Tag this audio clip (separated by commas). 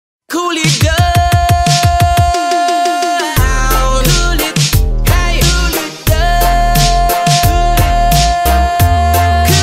Reggae, Music